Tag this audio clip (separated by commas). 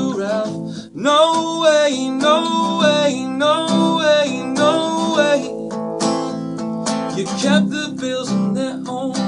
Music